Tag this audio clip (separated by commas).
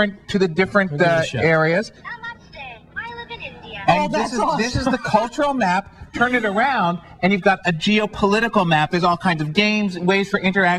Speech